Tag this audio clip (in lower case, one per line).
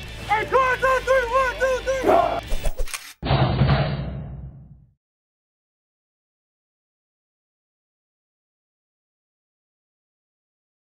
music
speech